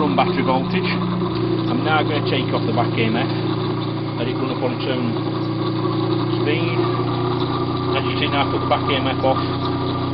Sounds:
Speech, Engine

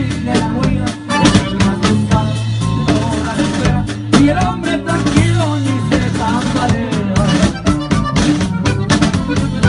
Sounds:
Music

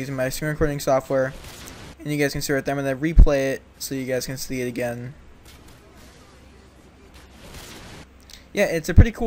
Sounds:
Speech

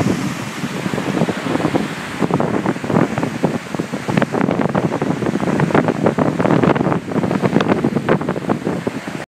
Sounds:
Waterfall

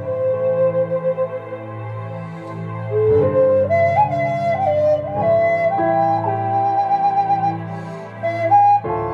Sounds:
Music, Flute

